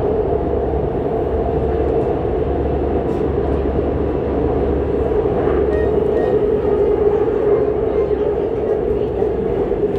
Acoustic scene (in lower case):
subway train